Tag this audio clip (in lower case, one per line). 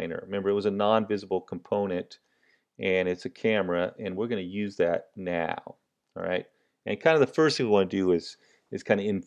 speech